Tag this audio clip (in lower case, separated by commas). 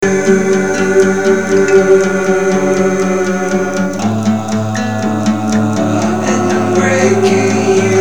plucked string instrument, acoustic guitar, music, human voice, guitar, musical instrument